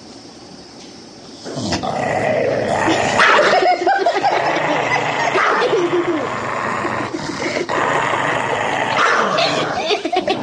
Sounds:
dog growling

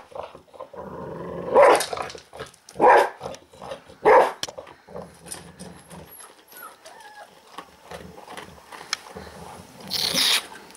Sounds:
dog growling

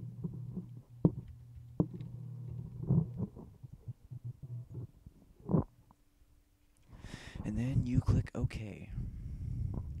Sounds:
Speech

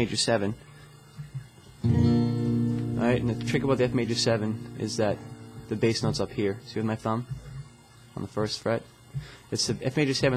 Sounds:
Speech, Music

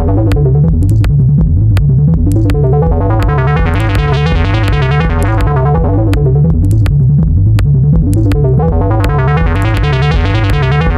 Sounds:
Music

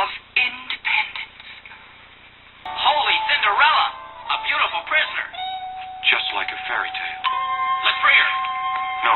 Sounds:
Television, Speech, Music

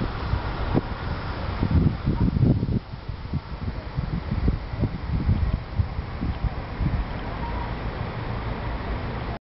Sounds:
Speech, outside, urban or man-made

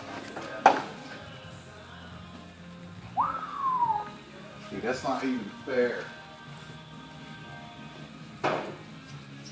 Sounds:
Speech, Music

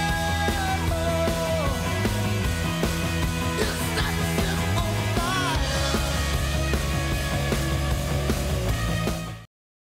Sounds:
Music

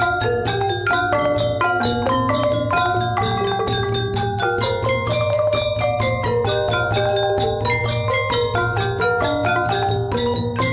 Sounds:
Traditional music, Music

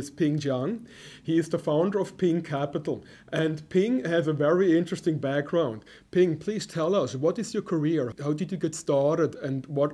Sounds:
Speech

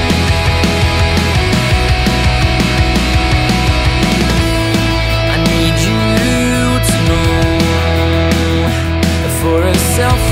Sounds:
Music

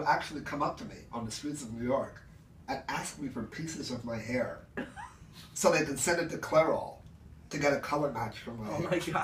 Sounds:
Speech

